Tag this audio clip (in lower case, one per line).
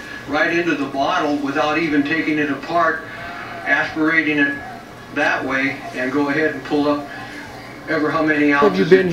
speech